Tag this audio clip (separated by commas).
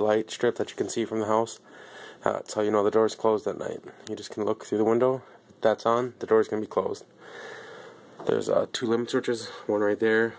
Speech